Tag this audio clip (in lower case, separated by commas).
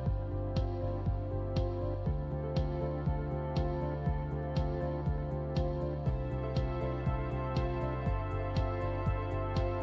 music